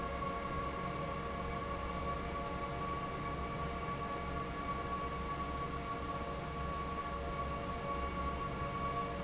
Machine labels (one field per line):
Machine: fan